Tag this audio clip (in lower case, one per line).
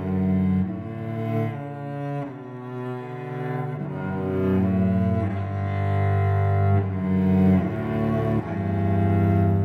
music
playing cello
musical instrument
cello